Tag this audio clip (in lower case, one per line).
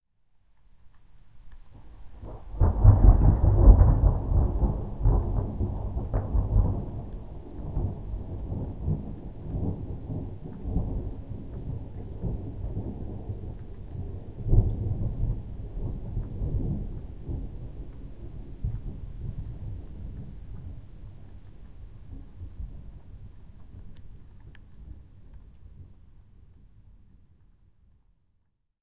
thunder
thunderstorm